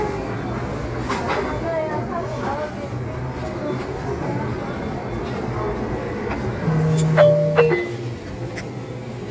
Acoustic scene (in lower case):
crowded indoor space